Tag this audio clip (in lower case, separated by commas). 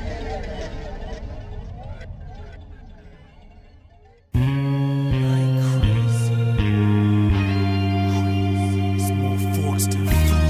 speech, music